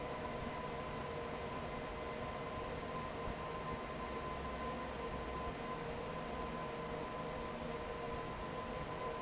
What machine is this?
fan